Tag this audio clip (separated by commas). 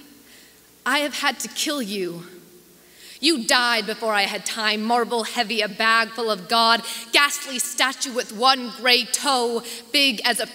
Speech